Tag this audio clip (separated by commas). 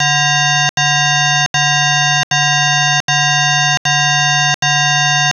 Alarm